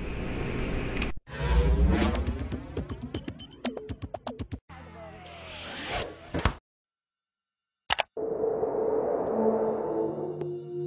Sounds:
sound effect

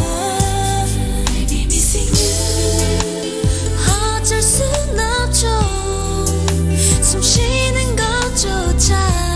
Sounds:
music
inside a large room or hall
inside a public space
singing

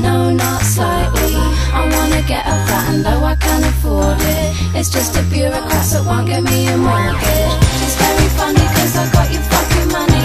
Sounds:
music

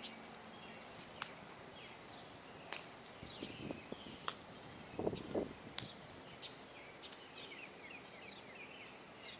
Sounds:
bird

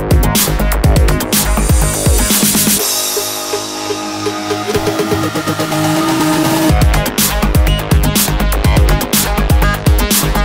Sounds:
music

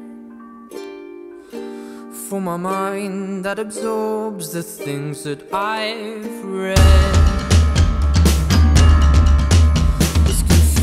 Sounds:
music

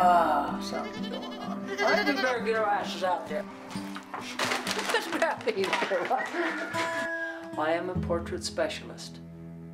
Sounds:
music
sheep
bleat
speech

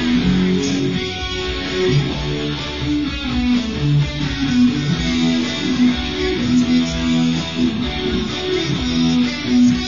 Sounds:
guitar
strum
plucked string instrument
musical instrument
music

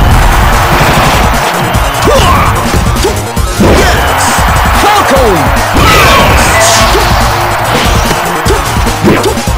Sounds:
speech
music
crash

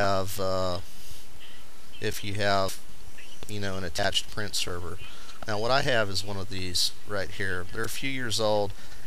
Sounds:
speech

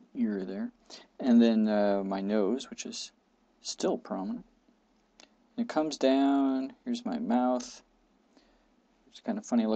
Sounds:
speech

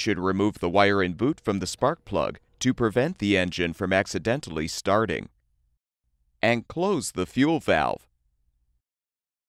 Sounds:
speech

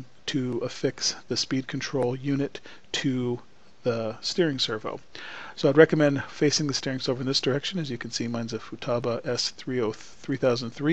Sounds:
speech

